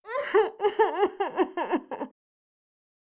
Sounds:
human voice, crying

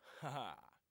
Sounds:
human voice, laughter

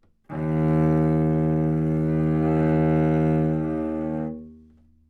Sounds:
musical instrument, music, bowed string instrument

